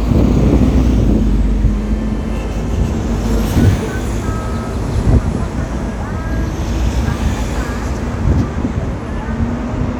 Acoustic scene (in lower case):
street